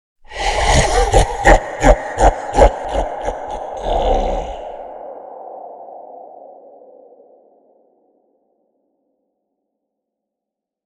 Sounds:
laughter, human voice

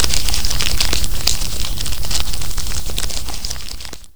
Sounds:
crumpling

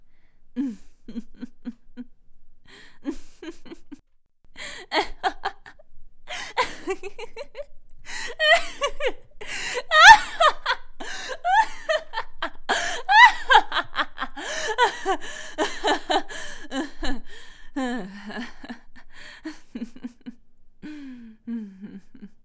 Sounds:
laughter, human voice, giggle

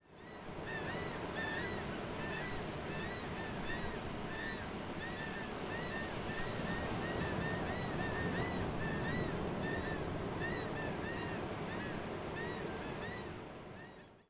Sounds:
ocean, water

